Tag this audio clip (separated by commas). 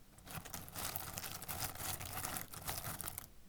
Crackle